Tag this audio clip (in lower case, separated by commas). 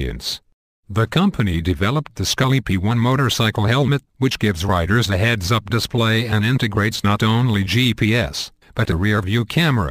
speech